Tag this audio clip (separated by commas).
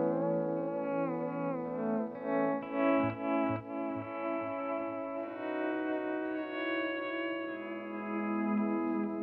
Plucked string instrument, Musical instrument, Music, Guitar, Acoustic guitar, Strum